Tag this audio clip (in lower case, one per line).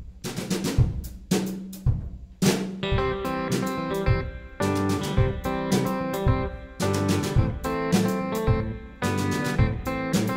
percussion
rimshot
drum
drum kit
snare drum
bass drum